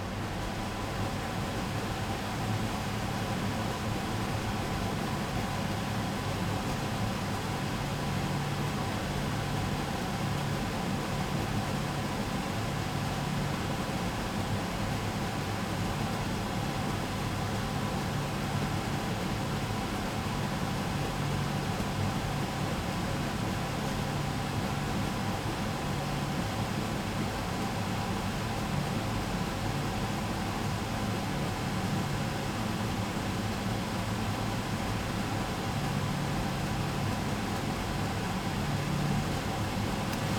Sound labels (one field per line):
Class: smoke extractor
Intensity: medium